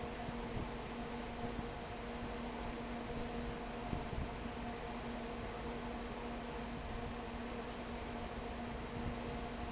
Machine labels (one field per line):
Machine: fan